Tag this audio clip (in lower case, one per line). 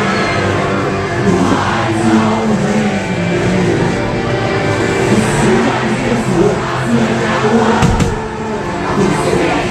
music